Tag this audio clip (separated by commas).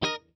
Music, Musical instrument, Guitar, Plucked string instrument